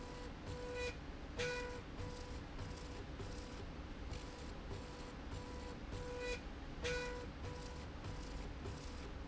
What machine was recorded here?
slide rail